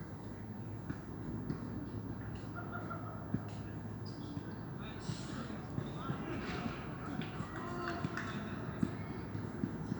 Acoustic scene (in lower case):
park